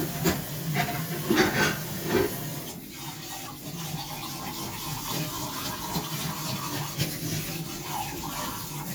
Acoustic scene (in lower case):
kitchen